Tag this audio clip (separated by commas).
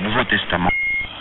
Speech, Human voice, Male speech